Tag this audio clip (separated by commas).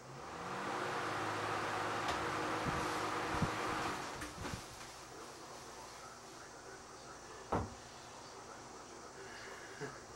Mechanical fan